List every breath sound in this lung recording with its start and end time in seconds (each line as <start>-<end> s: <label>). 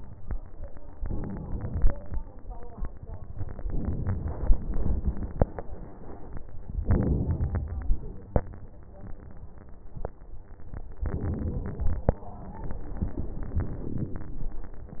0.95-1.93 s: inhalation
3.64-5.44 s: inhalation
6.82-8.31 s: inhalation
11.05-14.15 s: inhalation